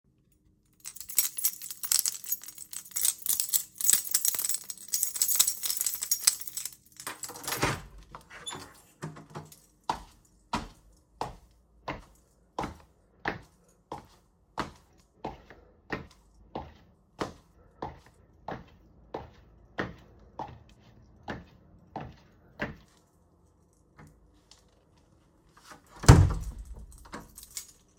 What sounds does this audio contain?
keys, door, footsteps